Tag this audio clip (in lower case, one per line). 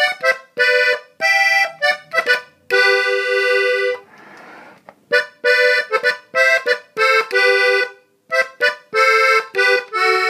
accordion